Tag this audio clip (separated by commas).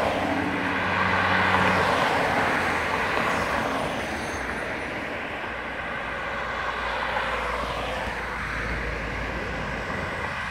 Vehicle, Car